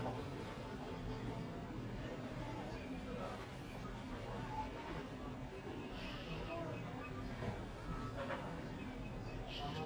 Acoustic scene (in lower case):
crowded indoor space